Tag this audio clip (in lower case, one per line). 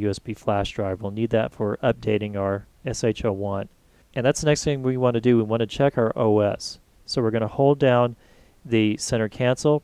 speech